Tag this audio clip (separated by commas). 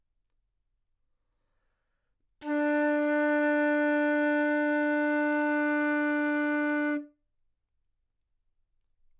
Musical instrument, Music, woodwind instrument